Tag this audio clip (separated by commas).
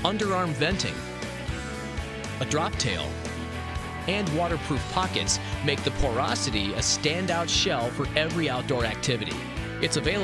Speech, Music